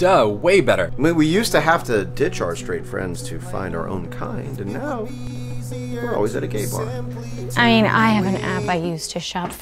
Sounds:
music, speech

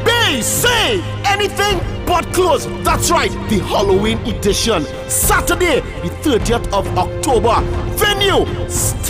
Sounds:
speech, music

